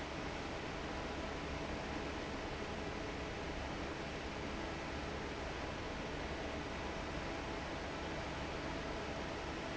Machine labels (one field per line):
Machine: fan